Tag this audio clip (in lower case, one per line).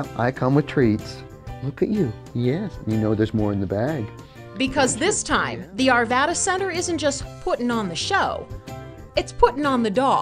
music
speech